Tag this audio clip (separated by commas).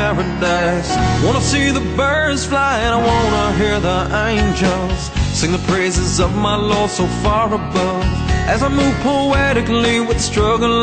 Bluegrass, Music, Country, Soundtrack music